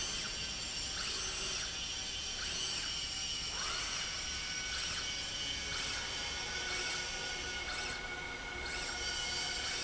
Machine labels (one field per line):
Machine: slide rail